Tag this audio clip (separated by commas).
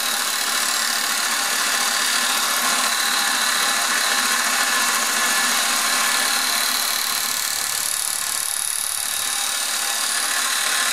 Power tool, Tools